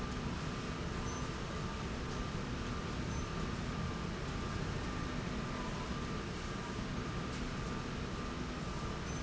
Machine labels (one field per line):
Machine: slide rail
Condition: normal